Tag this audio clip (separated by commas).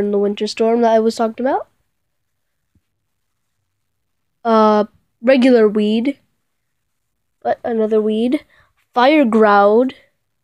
Speech